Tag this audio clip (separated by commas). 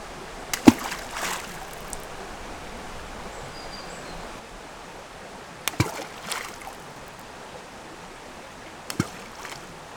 Liquid, splatter